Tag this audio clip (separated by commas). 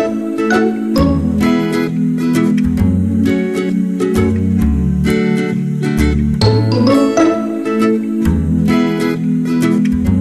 Music